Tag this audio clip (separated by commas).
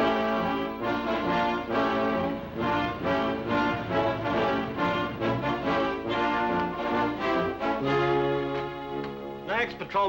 Speech, Music